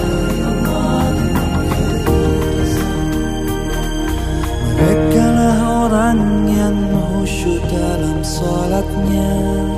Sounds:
Music, Radio

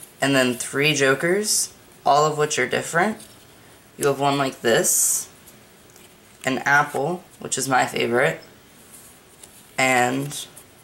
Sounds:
Speech

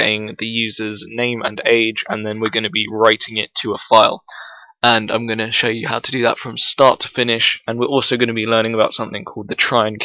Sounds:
Speech

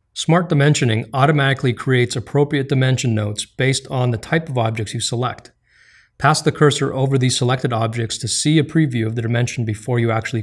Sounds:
Speech

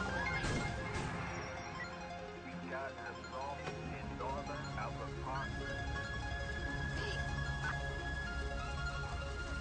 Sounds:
Music, Speech

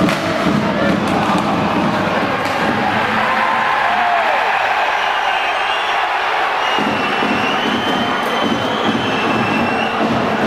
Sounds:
playing hockey

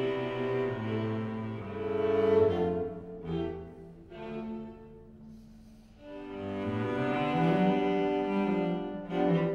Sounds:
Violin, Double bass, Cello, Bowed string instrument

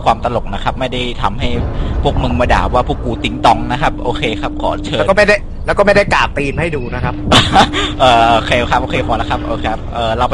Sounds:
Speech

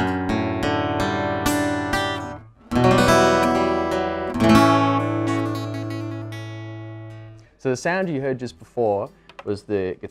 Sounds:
Music, Speech, Acoustic guitar, Guitar, Musical instrument, Plucked string instrument

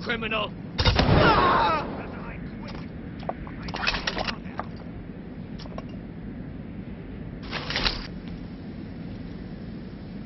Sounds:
Speech

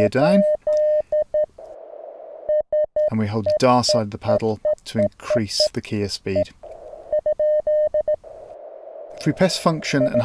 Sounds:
Radio, Speech

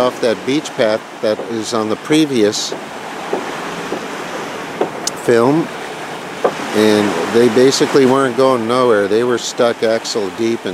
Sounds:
surf

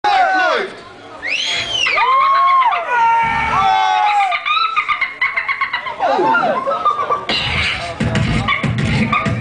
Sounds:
Beatboxing, Music, Speech

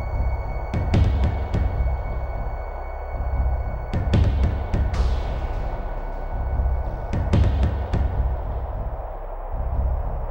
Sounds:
Music

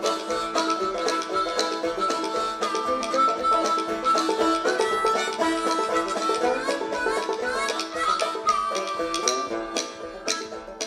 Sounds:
Music

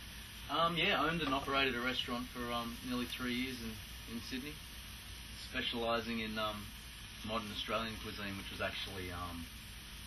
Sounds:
Speech, Drip

